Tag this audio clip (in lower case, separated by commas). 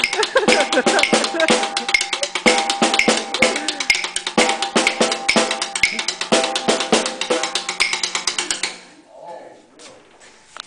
percussion, music